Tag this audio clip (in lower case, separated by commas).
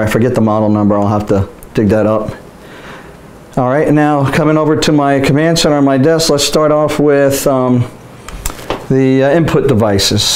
speech